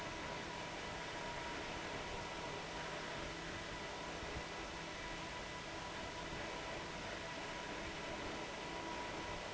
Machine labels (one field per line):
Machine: fan